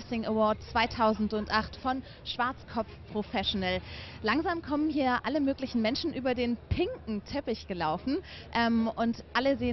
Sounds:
inside a public space, Speech

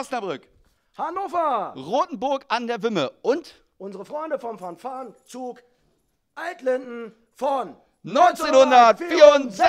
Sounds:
Speech

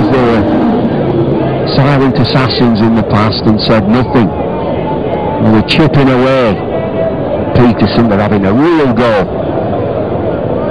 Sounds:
Speech

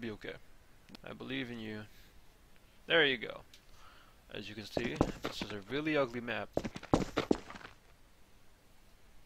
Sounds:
Speech

